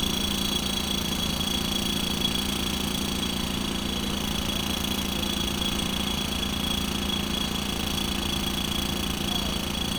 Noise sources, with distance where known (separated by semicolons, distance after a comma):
jackhammer